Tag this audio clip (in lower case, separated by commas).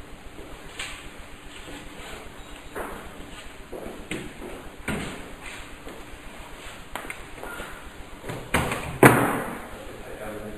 slam